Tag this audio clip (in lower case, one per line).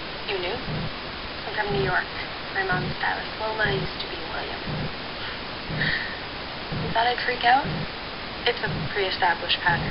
speech